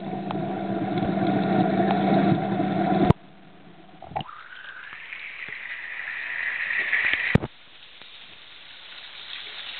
A rumble and then a hiss